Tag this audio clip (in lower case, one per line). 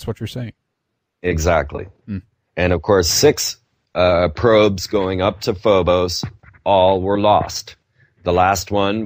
speech